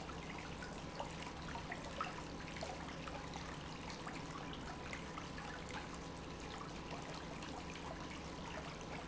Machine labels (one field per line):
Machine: pump